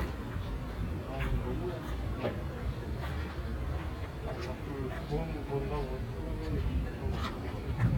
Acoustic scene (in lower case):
residential area